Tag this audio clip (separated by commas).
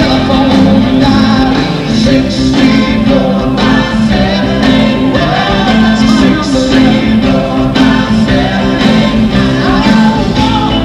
Pop music, Singing, inside a large room or hall, Music